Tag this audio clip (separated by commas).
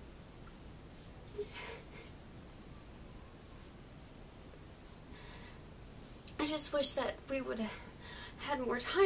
Speech